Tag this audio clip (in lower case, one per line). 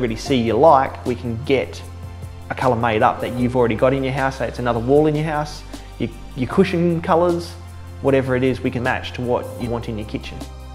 music
speech